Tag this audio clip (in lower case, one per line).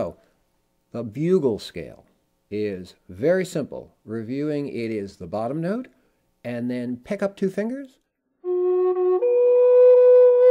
speech
music